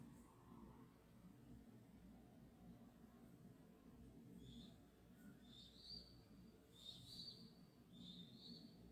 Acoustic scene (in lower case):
park